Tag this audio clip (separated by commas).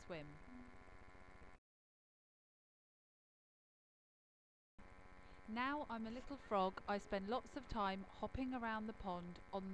Speech